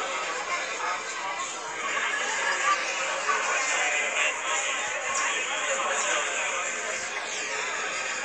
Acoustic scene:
crowded indoor space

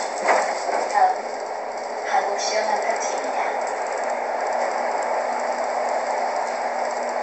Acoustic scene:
bus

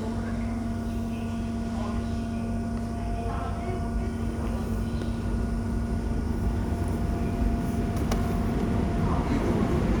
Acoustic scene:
subway station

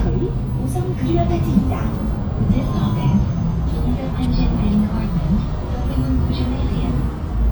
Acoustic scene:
bus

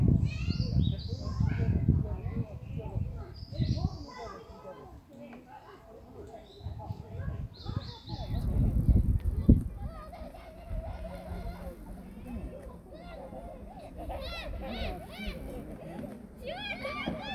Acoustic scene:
park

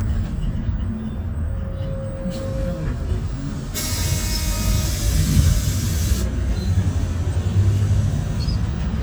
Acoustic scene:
bus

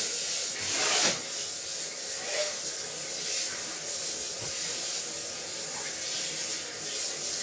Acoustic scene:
restroom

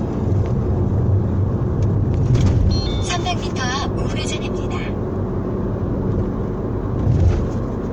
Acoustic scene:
car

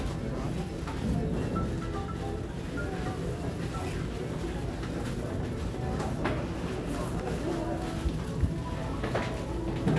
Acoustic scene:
crowded indoor space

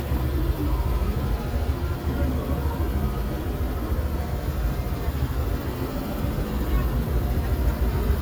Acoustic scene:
residential area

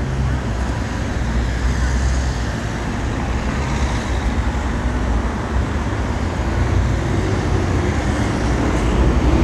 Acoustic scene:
street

